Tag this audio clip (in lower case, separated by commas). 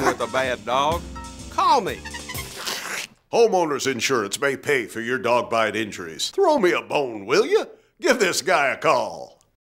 music, speech